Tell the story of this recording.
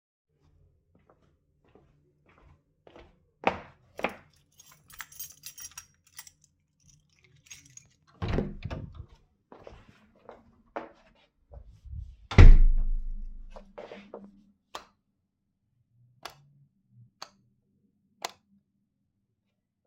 I came to my room, opened it with my keys, closed the door and turned on the light